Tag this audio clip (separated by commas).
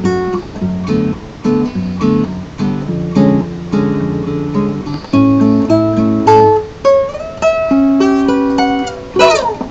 Musical instrument, Guitar, Music, Plucked string instrument